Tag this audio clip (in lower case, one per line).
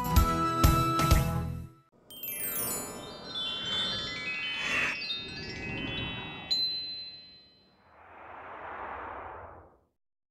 music
music for children